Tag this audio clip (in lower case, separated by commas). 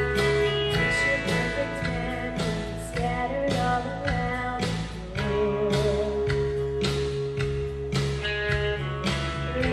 female singing, music